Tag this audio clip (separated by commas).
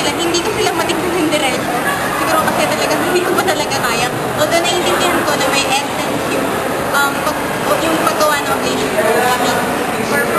Speech